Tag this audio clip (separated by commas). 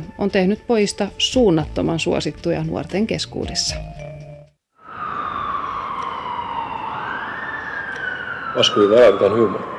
Speech, Music